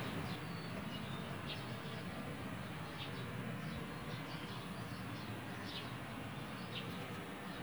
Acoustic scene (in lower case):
park